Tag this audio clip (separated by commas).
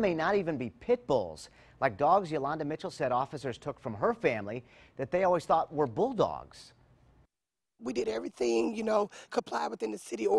Speech